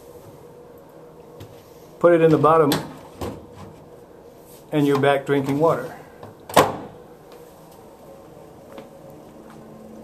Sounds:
Speech

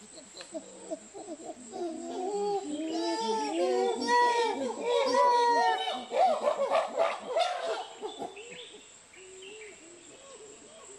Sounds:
chimpanzee pant-hooting

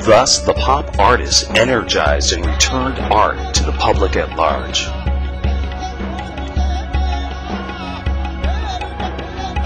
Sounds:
Music, Speech

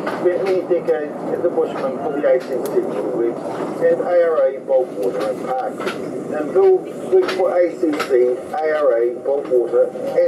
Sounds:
Speech

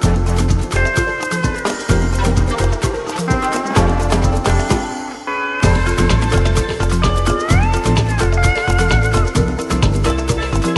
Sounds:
Music

